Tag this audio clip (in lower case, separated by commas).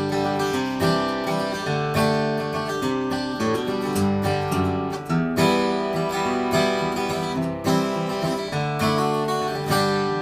musical instrument, acoustic guitar, guitar, plucked string instrument, strum, music